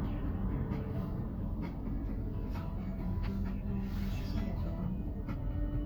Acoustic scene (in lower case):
car